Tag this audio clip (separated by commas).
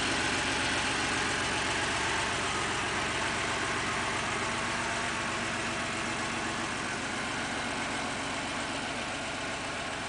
Vehicle